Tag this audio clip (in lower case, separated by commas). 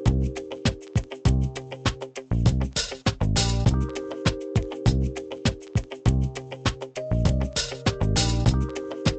music